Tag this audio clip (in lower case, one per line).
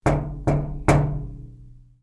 home sounds
door
knock